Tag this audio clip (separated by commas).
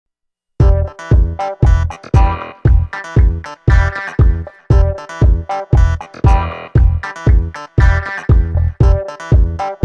Sampler